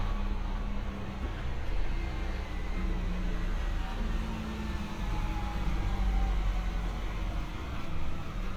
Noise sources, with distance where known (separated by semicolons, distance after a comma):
engine of unclear size, near